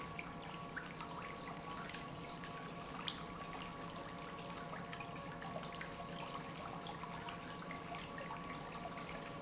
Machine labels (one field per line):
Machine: pump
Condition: normal